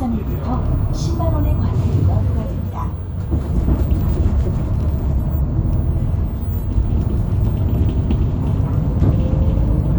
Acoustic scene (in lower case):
bus